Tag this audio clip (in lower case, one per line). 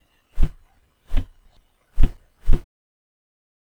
footsteps